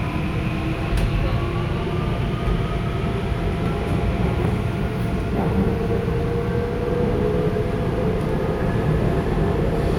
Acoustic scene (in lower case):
subway train